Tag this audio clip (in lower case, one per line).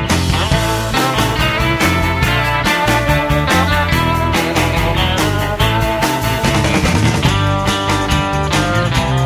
music